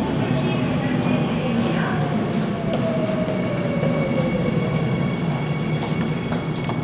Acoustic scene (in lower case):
subway station